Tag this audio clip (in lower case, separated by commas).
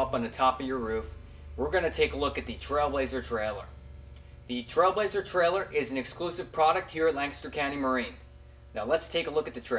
speech